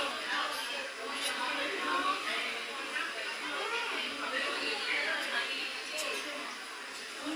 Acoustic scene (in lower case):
restaurant